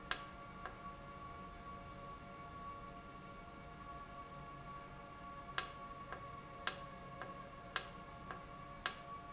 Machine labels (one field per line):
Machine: valve